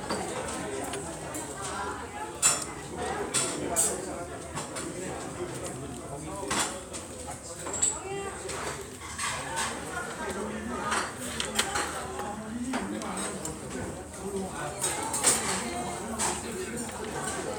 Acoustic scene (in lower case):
restaurant